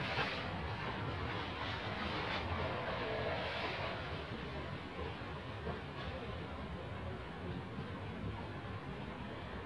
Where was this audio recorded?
in a residential area